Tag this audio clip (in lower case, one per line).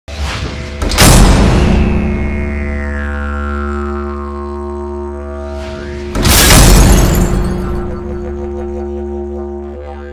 music